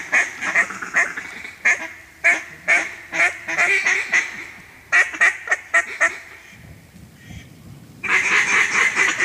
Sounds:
Duck, Animal, duck quacking, Quack

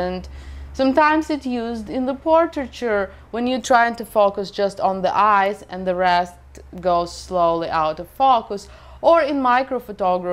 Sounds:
Speech

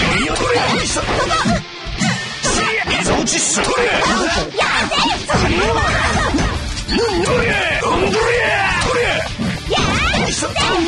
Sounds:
Music, Speech

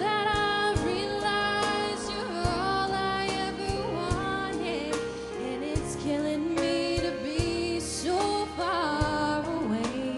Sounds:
Female singing, Music

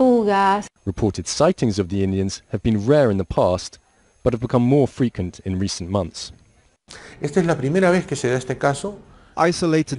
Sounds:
Speech

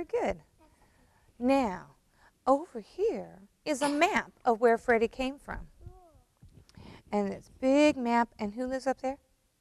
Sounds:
Speech

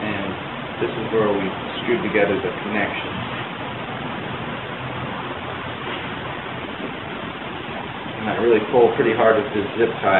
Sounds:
Speech

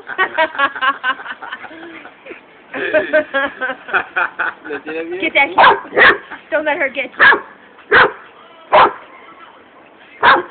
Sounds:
Animal, Speech, Domestic animals

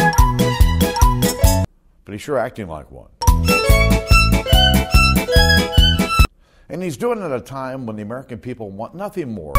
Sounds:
man speaking, Music, Speech

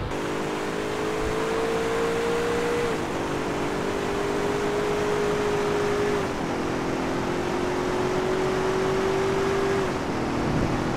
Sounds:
Car passing by

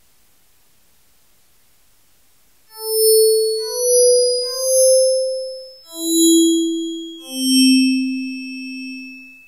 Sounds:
Music, Synthesizer, Keyboard (musical), Musical instrument, Electric piano, Piano

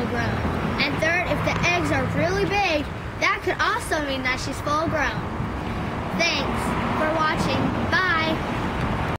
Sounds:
Speech

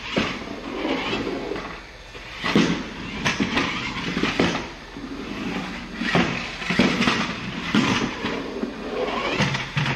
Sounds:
Car

